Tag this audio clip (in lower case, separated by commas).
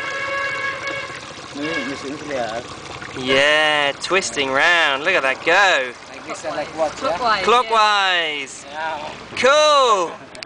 stream, gurgling, speech